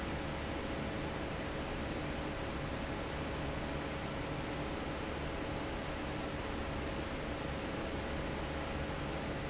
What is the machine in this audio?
fan